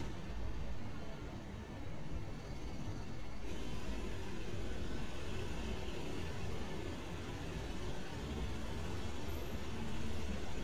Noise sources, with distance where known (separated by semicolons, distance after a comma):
medium-sounding engine, near